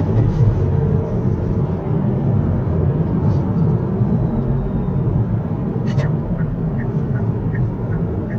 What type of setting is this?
car